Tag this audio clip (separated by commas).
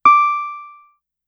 Musical instrument, Music, Piano, Keyboard (musical)